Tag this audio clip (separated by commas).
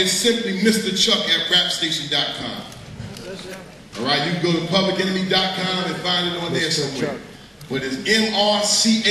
Narration, Speech, man speaking